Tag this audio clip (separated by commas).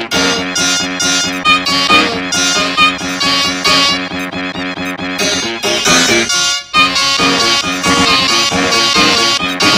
Music